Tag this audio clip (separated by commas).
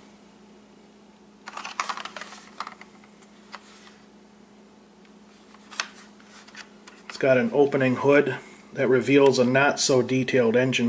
Speech